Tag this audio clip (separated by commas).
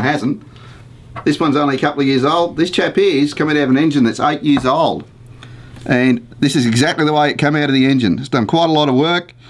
Speech